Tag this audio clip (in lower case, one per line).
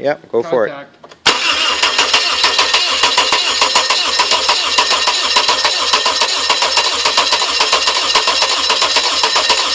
speech
engine starting
car engine starting